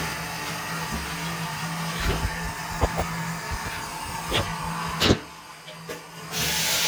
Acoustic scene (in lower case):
restroom